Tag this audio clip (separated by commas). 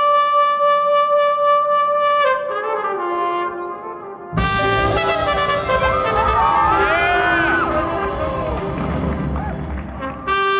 Speech, Music, Clarinet